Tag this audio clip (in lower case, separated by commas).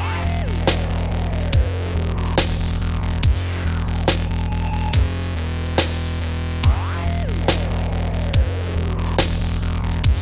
dubstep, music, electronic music